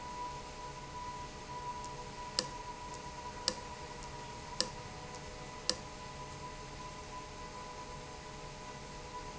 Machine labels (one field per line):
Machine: valve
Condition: abnormal